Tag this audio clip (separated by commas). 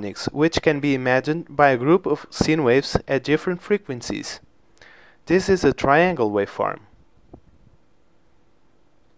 Speech, Sampler